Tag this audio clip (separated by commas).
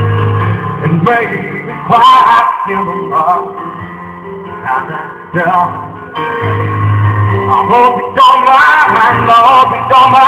Music